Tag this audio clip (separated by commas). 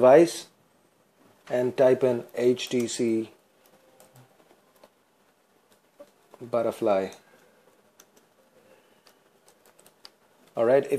Speech, inside a small room